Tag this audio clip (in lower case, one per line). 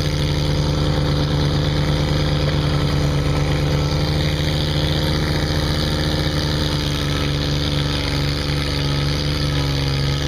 lawn mower
lawn mowing
vehicle